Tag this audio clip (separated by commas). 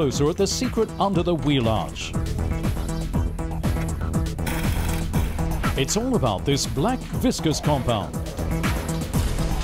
Music, Speech